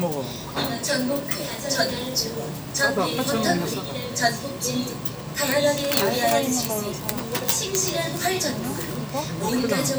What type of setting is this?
crowded indoor space